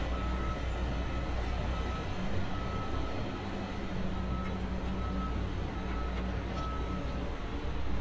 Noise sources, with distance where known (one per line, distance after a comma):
large-sounding engine, far
reverse beeper, far